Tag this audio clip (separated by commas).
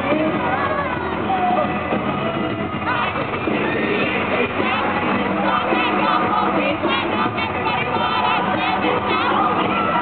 Music, Speech